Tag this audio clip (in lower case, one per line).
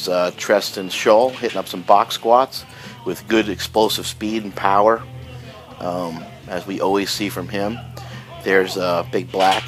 music
speech